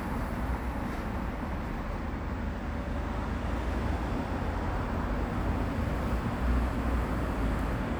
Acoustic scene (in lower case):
residential area